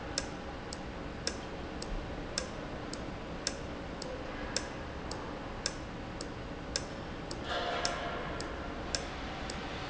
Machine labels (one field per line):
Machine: valve